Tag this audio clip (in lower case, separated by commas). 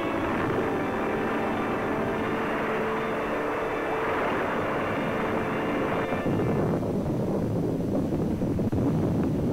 outside, rural or natural, music